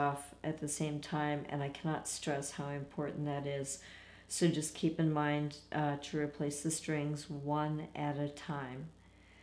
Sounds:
Speech

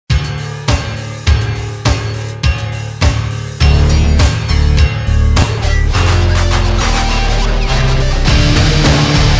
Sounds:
Angry music, Music

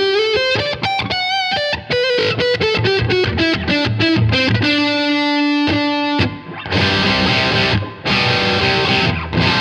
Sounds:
Strum, Electric guitar, Music, Musical instrument, Plucked string instrument, Guitar

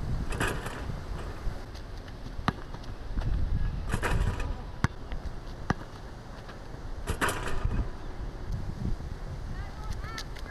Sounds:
Basketball bounce

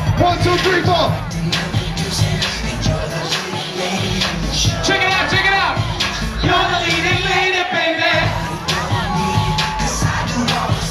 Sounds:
Music, Speech

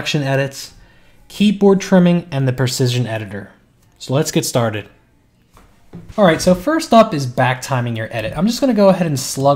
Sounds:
Speech

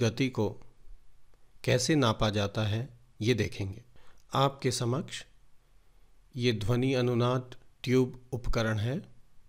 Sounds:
Speech

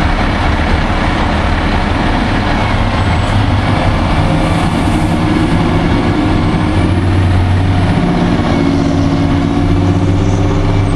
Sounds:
Truck, Vehicle

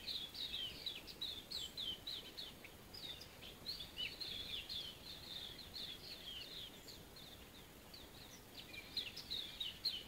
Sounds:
Chirp, Bird, bird song

